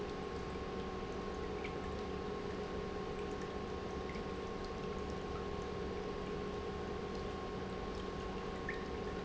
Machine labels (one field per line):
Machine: pump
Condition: normal